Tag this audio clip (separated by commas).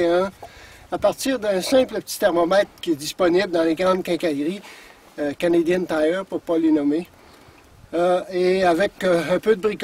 Speech